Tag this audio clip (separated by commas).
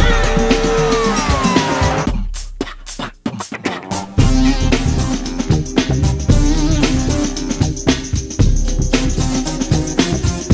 Music